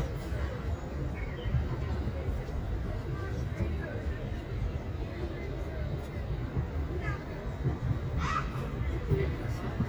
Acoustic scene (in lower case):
park